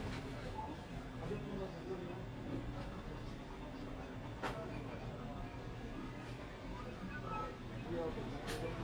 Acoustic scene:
crowded indoor space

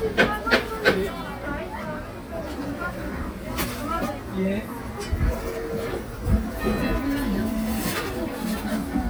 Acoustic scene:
cafe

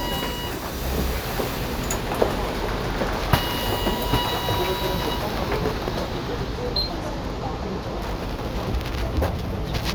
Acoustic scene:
bus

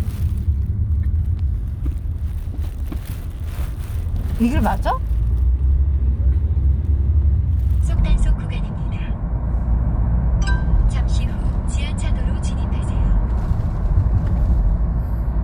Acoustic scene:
car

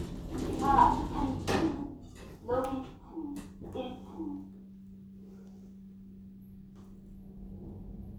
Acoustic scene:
elevator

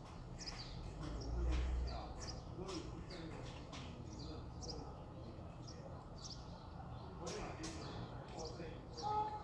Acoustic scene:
residential area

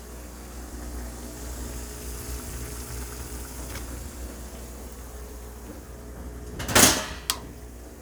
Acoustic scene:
kitchen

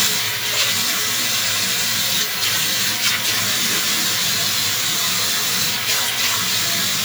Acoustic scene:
restroom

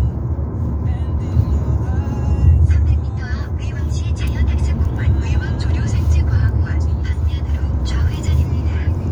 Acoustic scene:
car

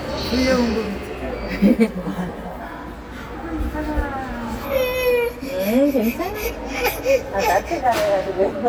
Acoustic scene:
subway station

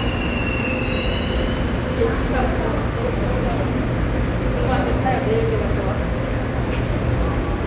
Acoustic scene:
subway station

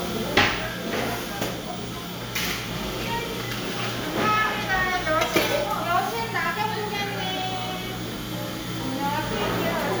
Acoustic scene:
cafe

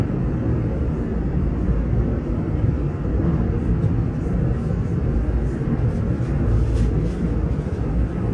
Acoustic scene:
subway train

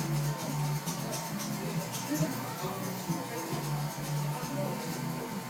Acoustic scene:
cafe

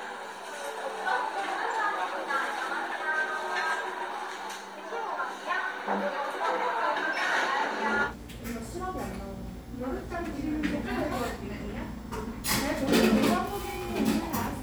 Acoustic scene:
cafe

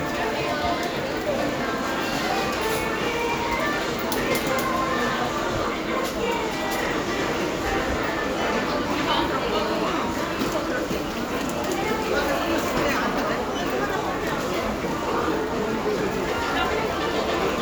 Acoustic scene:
crowded indoor space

